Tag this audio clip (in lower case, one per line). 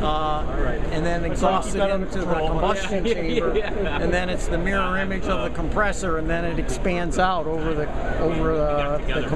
speech